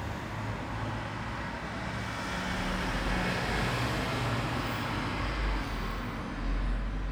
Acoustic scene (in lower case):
street